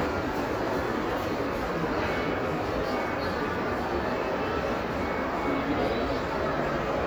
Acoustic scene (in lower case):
crowded indoor space